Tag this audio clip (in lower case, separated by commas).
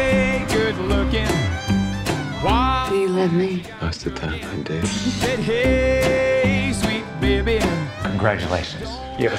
bluegrass